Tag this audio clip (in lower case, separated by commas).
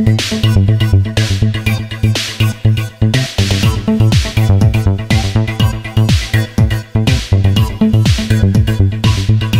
electronica, electronic music, music